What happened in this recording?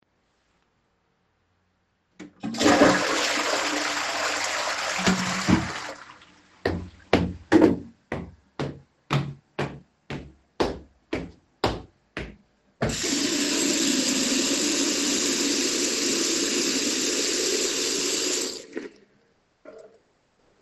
I was done with the toilet. I then flushed it and walked to the sink to wash my hands.